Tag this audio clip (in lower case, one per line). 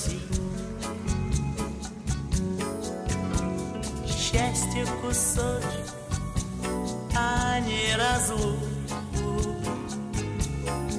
music